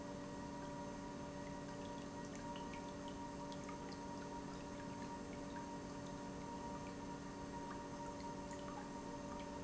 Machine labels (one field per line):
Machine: pump